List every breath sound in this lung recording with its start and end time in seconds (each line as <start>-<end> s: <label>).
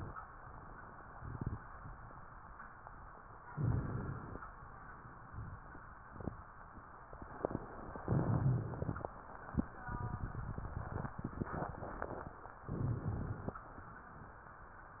3.47-4.44 s: inhalation
8.06-9.12 s: inhalation
8.06-9.12 s: crackles
12.67-13.61 s: inhalation